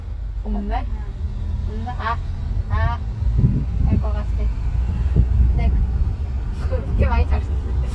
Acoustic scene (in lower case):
car